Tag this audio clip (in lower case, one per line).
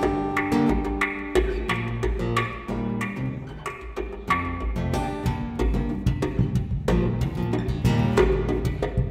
musical instrument
guitar
music